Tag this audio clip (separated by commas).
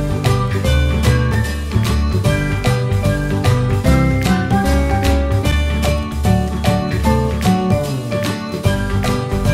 Music